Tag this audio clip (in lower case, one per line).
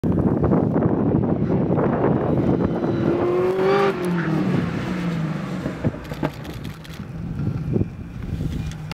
car
motor vehicle (road)
vehicle